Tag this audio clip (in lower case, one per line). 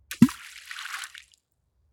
splash
liquid
water